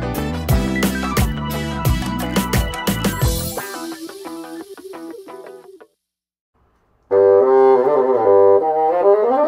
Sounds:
playing bassoon

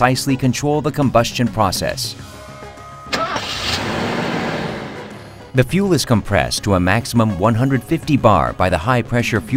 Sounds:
Music, Speech

